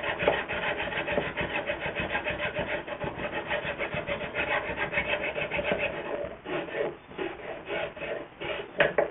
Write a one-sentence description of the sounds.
A wood objects is rubbed